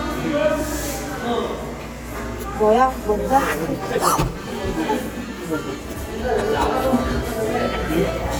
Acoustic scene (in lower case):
cafe